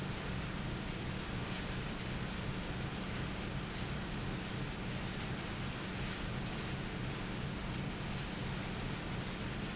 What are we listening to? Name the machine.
fan